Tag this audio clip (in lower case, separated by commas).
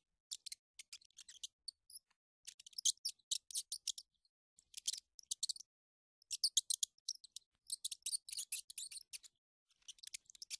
mouse squeaking